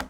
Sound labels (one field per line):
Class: object falling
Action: being thrown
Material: plastic